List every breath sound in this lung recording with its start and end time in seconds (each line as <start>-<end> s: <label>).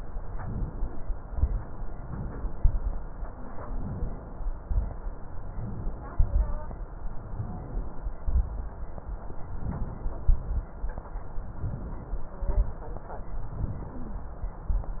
0.30-1.08 s: inhalation
1.20-1.73 s: exhalation
1.96-2.58 s: inhalation
2.58-3.06 s: exhalation
3.76-4.46 s: inhalation
4.55-5.03 s: exhalation
5.52-6.13 s: inhalation
6.15-6.66 s: exhalation
7.29-7.95 s: inhalation
8.20-8.79 s: exhalation
9.47-10.25 s: inhalation
10.29-10.68 s: exhalation
11.46-12.16 s: inhalation
12.39-12.85 s: exhalation
13.57-14.21 s: inhalation